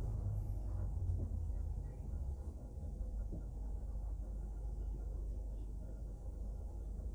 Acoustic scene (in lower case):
bus